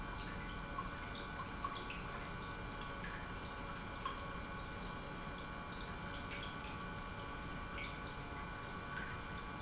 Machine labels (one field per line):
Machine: pump